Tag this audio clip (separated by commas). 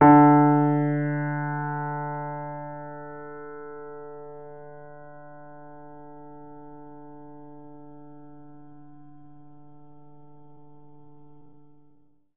Music, Musical instrument, Keyboard (musical), Piano